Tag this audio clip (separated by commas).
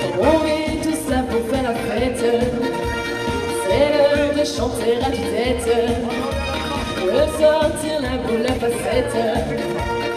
Music